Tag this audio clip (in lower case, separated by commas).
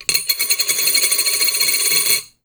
coin (dropping), home sounds